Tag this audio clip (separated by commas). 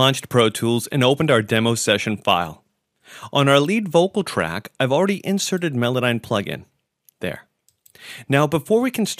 Speech